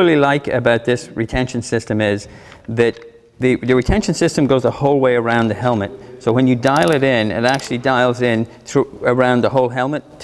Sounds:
Speech

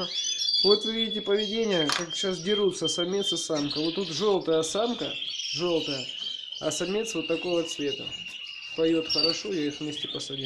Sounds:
canary calling

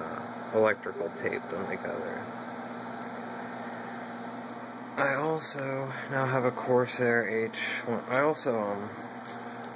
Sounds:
Speech

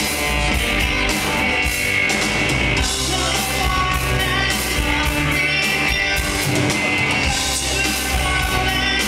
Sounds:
Music

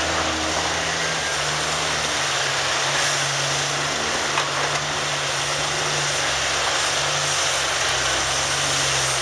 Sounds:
Steam

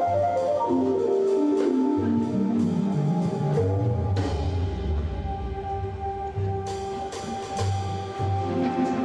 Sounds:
Music

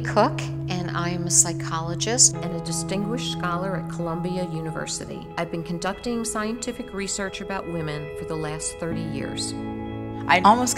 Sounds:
Speech, Music

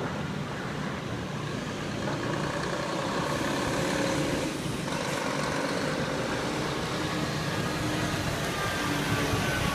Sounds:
Vehicle, Truck

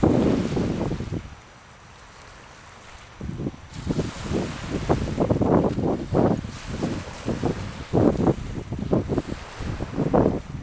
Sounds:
sailing, Water vehicle, sailing ship

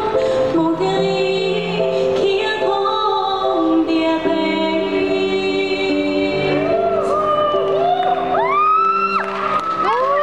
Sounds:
Music, Female singing

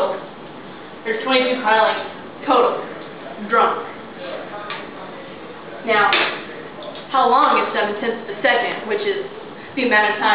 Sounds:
Speech, inside a large room or hall

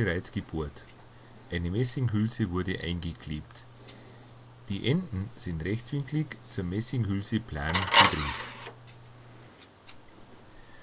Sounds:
Speech

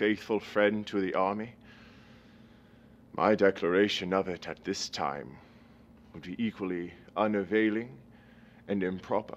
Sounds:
Speech, man speaking

